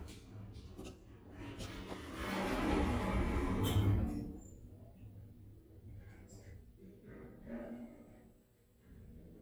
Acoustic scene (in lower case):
elevator